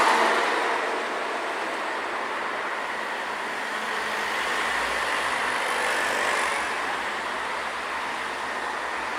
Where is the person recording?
on a street